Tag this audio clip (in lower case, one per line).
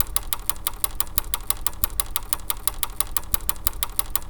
vehicle
bicycle